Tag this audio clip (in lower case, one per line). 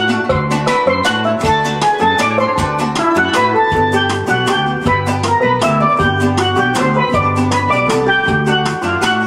music
electric piano
steelpan